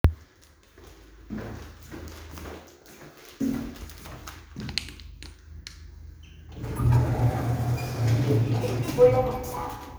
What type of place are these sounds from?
elevator